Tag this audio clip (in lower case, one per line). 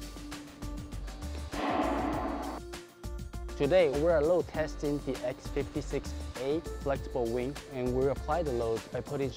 speech
music